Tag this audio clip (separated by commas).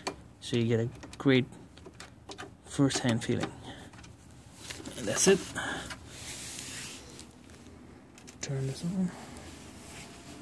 inside a small room, Speech